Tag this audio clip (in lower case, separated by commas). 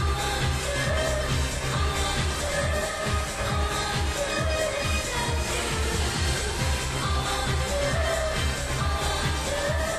music, pop music, music of asia